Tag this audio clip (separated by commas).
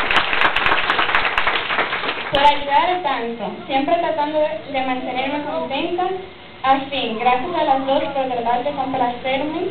Speech, woman speaking